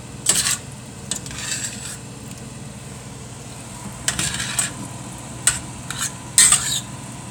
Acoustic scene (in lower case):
kitchen